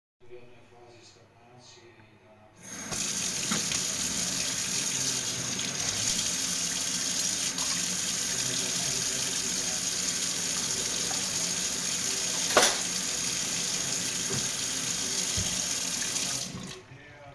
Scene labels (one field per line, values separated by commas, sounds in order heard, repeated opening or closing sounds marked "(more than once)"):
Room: kitchen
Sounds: running water, cutlery and dishes